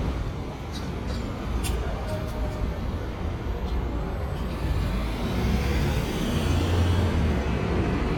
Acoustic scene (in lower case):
residential area